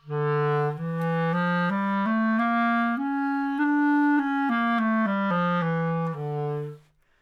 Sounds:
musical instrument, music, woodwind instrument

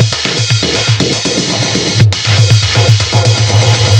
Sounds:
percussion, drum kit, musical instrument, music

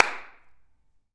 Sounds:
clapping, hands

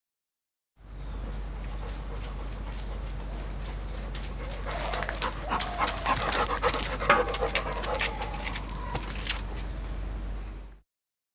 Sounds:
animal, dog, domestic animals

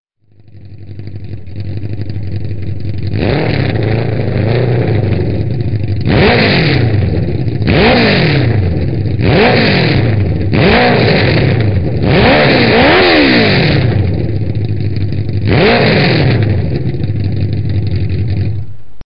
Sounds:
vroom, engine

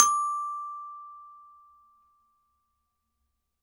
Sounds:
percussion, musical instrument, mallet percussion, music, glockenspiel

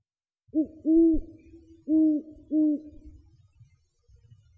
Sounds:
wild animals, bird, animal

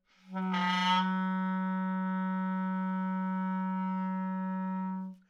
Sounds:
wind instrument, music, musical instrument

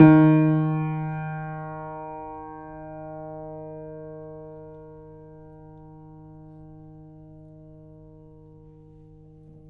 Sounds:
musical instrument, music, keyboard (musical), piano

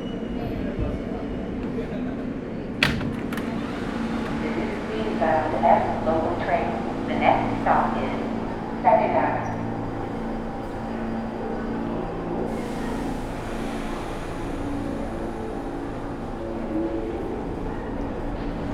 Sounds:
rail transport, underground, vehicle

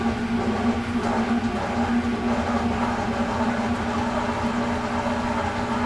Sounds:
engine

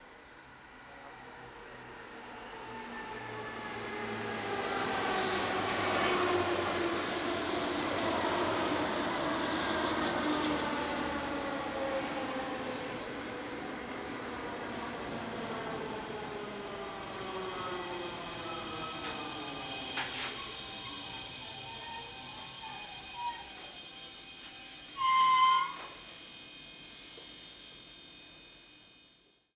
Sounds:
vehicle, subway, rail transport

